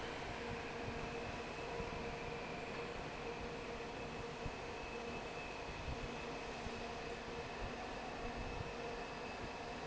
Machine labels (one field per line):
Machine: fan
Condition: normal